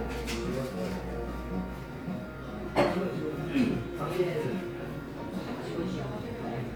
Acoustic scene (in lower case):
cafe